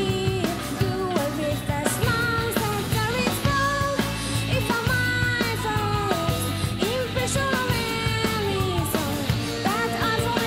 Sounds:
Music

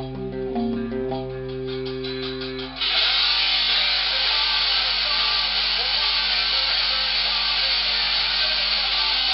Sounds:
Plucked string instrument, Music, Strum, Guitar, Musical instrument

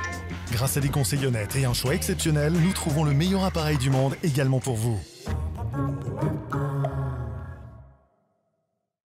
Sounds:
Speech, Music

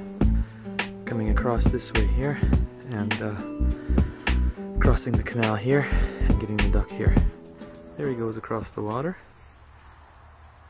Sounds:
Speech, Music

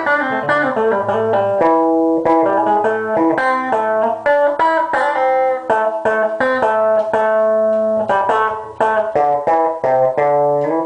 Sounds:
Acoustic guitar, Guitar, Musical instrument, Music, Plucked string instrument

